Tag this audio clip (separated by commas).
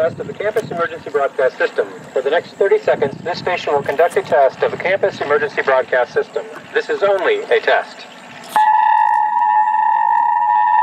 Vehicle, Speech